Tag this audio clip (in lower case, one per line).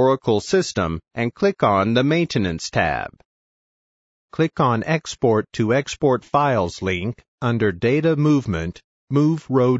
speech